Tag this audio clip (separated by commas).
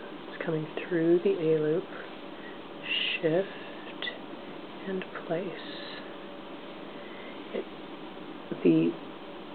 inside a small room, Speech